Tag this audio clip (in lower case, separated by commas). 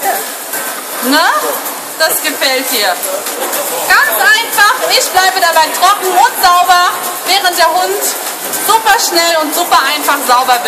speech